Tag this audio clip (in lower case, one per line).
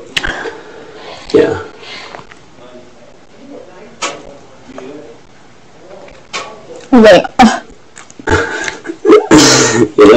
inside a small room
speech